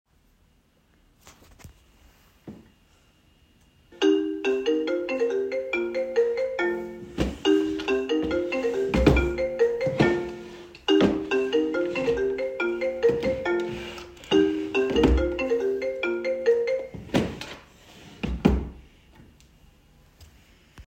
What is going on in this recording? The device remains static near a drawer. A phone starts ringing while a wardrobe or drawer is opened and searched, creating a noticeable overlap between both target events. The drawer is then closed while the phone sound fades.